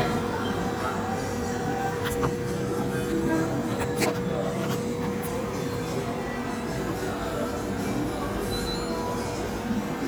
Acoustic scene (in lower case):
cafe